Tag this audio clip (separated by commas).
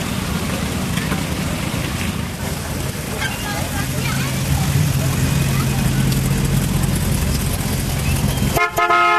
Speech, Car, Vehicle